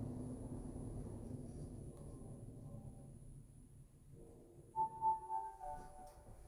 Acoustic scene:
elevator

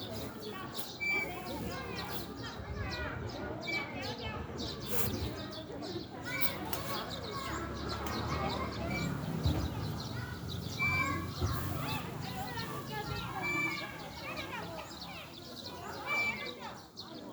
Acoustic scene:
residential area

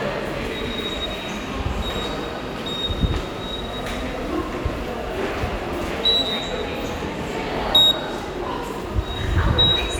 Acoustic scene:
subway station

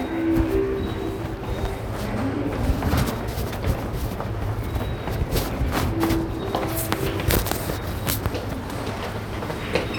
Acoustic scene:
subway station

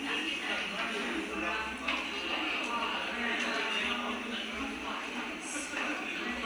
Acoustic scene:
crowded indoor space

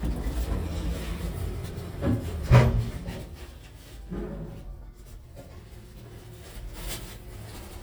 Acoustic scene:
elevator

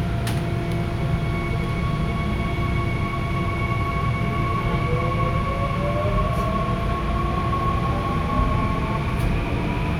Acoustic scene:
subway train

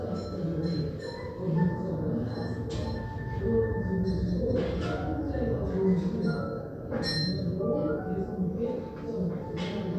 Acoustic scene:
crowded indoor space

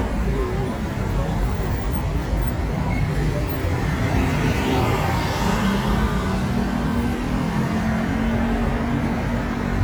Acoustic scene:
street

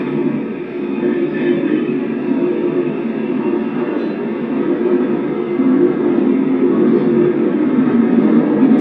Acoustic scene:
subway train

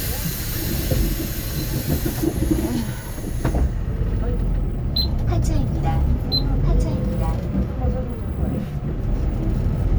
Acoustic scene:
bus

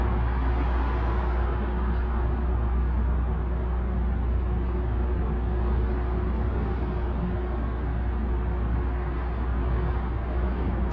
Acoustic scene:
bus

